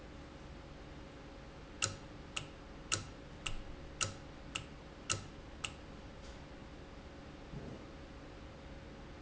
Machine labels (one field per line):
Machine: valve